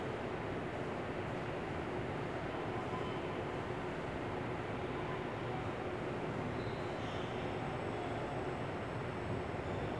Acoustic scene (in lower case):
subway station